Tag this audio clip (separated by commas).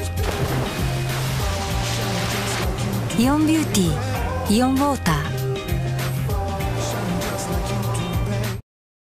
Speech, Music